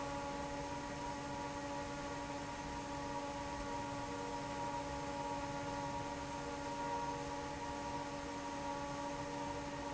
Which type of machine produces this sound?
fan